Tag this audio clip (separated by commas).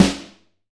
Music, Drum, Percussion, Musical instrument, Snare drum